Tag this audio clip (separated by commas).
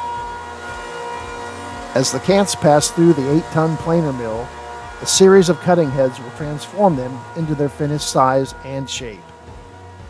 planing timber